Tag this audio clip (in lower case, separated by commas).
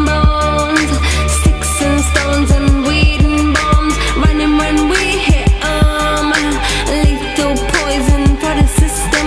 rhythm and blues